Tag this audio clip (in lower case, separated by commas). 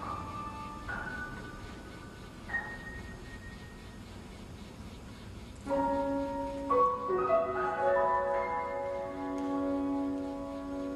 musical instrument, music, violin, cello